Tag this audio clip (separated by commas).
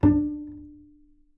Musical instrument, Music, Bowed string instrument